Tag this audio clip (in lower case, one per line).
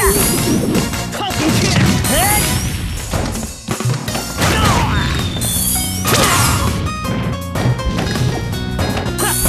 music
speech